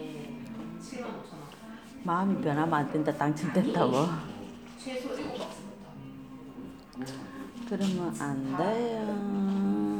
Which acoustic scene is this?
crowded indoor space